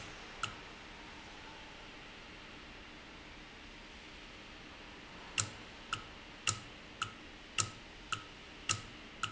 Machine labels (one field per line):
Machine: valve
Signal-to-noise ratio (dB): 6 dB